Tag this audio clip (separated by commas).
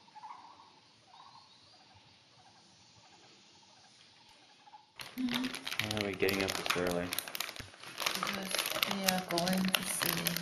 Speech, crinkling